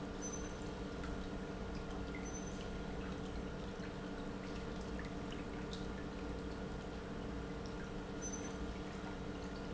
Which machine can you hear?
pump